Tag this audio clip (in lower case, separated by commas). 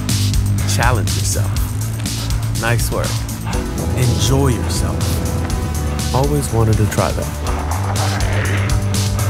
music, speech